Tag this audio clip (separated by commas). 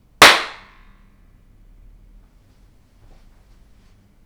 Hands, Clapping